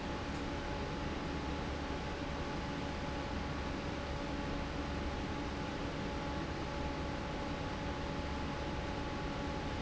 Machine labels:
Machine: fan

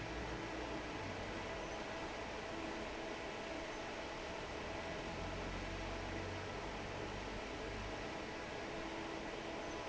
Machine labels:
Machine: fan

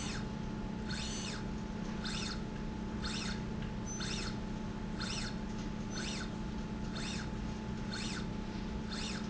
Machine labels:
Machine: slide rail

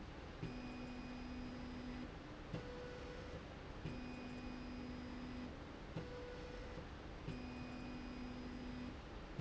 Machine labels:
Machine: slide rail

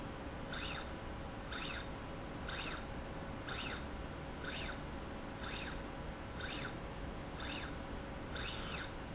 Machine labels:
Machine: slide rail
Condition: normal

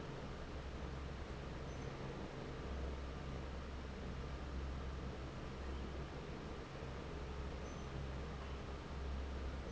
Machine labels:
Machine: fan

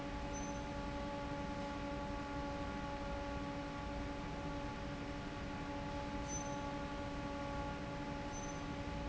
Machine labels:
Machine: fan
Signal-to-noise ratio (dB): 0 dB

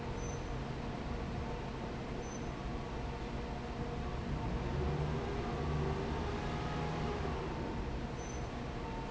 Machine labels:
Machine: fan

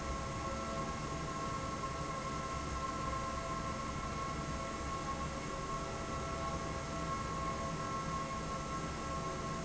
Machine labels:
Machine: fan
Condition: abnormal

